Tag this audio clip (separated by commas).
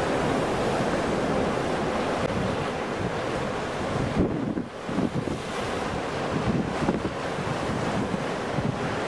sea waves